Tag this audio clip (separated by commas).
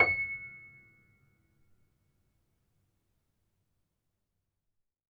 Music, Piano, Musical instrument, Keyboard (musical)